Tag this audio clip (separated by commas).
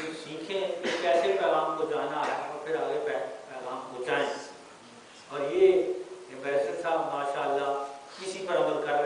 Speech, Narration, Male speech